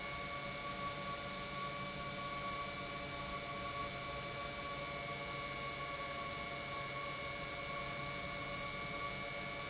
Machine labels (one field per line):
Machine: pump